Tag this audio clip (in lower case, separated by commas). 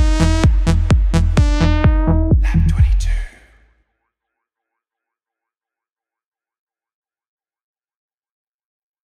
music, speech